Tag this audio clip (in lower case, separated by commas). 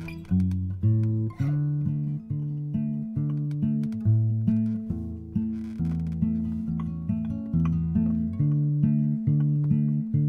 music, acoustic guitar